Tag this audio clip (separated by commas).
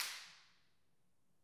Hands, Clapping